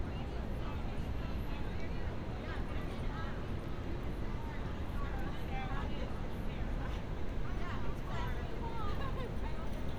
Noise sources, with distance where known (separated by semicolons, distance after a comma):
person or small group talking, near